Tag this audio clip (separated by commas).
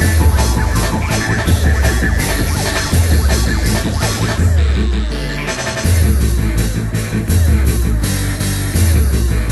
Music